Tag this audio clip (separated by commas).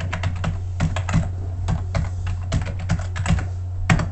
Computer keyboard, home sounds, Typing